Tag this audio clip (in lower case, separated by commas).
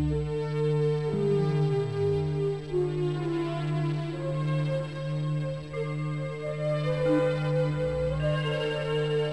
music